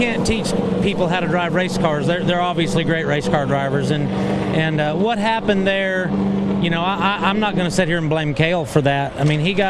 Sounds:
Vehicle, Speech, Car

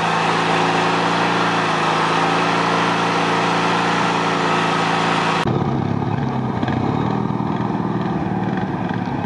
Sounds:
Vehicle, outside, rural or natural

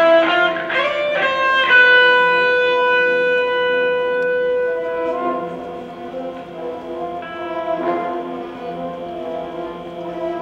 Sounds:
Music

